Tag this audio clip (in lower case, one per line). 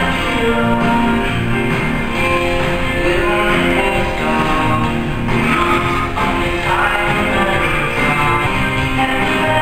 music